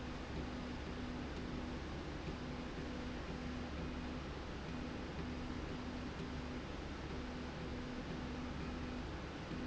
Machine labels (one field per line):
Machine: slide rail